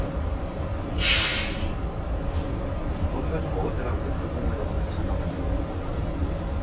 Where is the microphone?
on a bus